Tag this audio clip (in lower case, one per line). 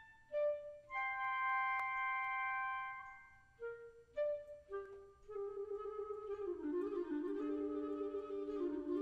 music